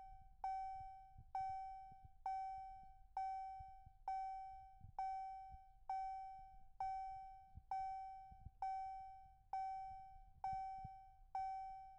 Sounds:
Vehicle, Motor vehicle (road)

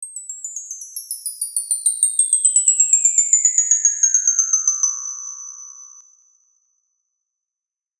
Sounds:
Wind chime, Bell, Chime

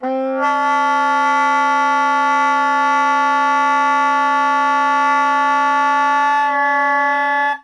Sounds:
Music, Wind instrument, Musical instrument

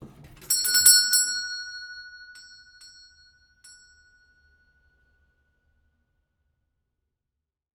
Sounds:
Door, Doorbell, Alarm, home sounds

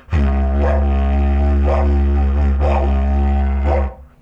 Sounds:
Music, Musical instrument

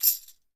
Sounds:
Percussion, Music, Tambourine, Musical instrument

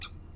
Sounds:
home sounds, Scissors

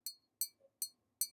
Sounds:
Tap

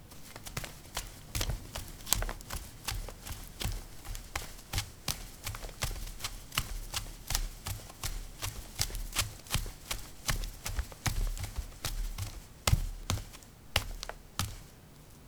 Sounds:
Run

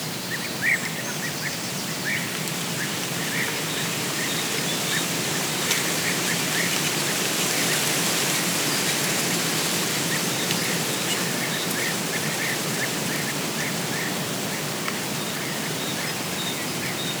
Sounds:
Wind

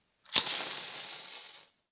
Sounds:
Fire

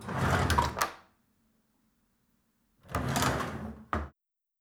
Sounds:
Drawer open or close, Domestic sounds, Wood

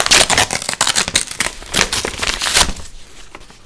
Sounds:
Tearing

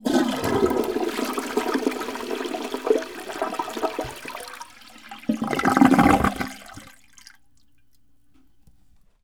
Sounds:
Toilet flush, Domestic sounds, Water, Gurgling

